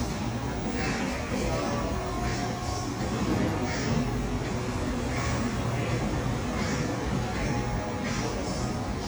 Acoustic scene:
cafe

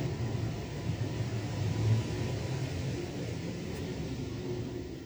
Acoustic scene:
elevator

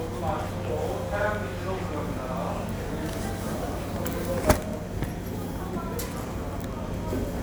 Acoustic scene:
subway station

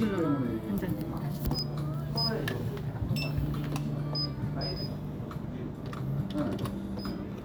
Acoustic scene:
cafe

